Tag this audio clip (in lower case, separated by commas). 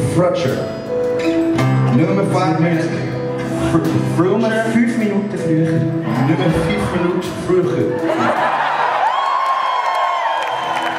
speech, music